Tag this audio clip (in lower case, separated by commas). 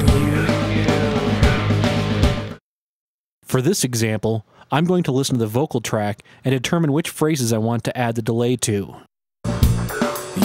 music, speech